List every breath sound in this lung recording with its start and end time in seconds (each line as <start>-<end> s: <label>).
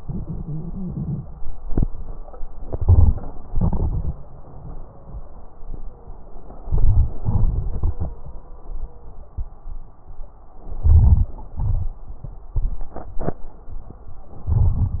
2.56-3.18 s: inhalation
2.56-3.18 s: crackles
3.47-4.09 s: exhalation
3.47-4.09 s: crackles
6.60-7.34 s: inhalation
6.60-7.34 s: crackles
7.37-8.27 s: exhalation
7.37-8.27 s: crackles
10.78-11.40 s: inhalation
10.78-11.40 s: crackles
11.49-12.11 s: exhalation
11.50-12.13 s: crackles
14.37-14.99 s: inhalation
14.37-14.99 s: crackles